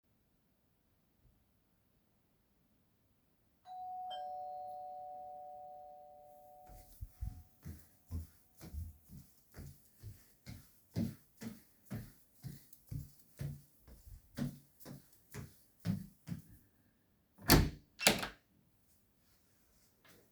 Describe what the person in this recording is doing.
I was sitting on my chair and i heard that someone rang the bell. I stood up and walked to the door, opened it to check if there is someone around.